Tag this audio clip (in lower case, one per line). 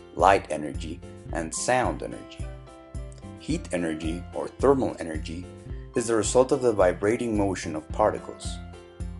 speech
music